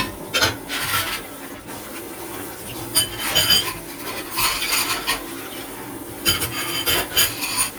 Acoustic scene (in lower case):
kitchen